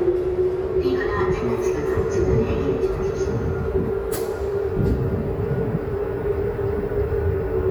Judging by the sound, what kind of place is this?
subway station